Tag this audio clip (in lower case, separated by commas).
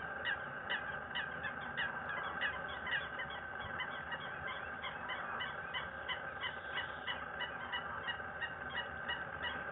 fowl, goose, honk